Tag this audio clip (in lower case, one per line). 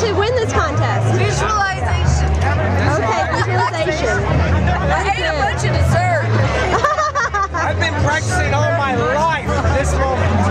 pop music
speech
music